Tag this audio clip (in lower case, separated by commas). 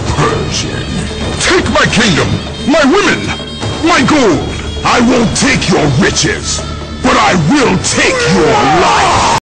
music, speech